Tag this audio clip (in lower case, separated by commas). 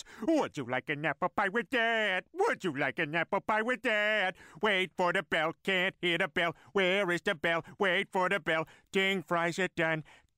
speech